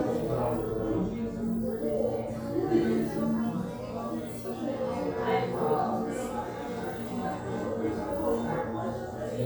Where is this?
in a crowded indoor space